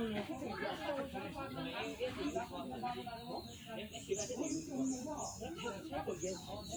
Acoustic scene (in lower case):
park